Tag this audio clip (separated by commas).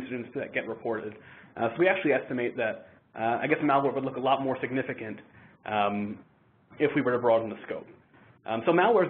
Speech